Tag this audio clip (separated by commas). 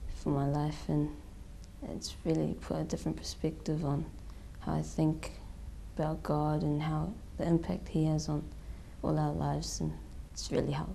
Speech